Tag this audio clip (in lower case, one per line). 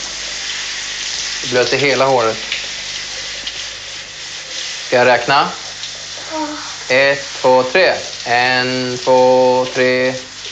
water
water tap